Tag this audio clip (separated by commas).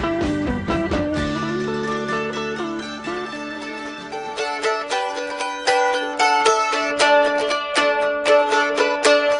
playing mandolin